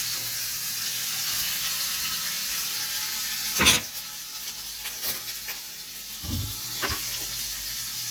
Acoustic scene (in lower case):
kitchen